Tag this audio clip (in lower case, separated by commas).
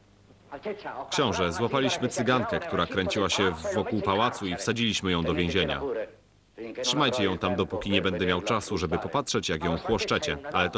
speech